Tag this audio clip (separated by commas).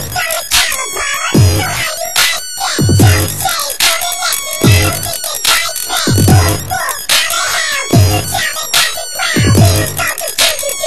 Music